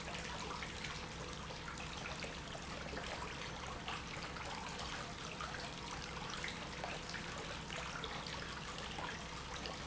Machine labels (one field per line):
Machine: pump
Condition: normal